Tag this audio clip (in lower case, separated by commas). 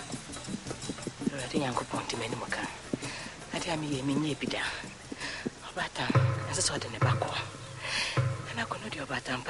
male speech, speech, narration